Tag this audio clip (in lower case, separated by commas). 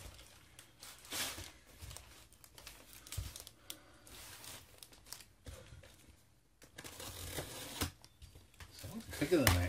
speech, tearing, crumpling, inside a small room